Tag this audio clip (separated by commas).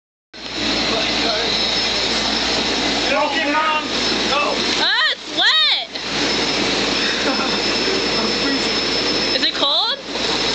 Speech, Bathtub (filling or washing)